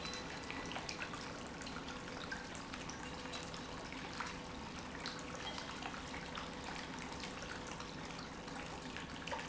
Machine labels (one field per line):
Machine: pump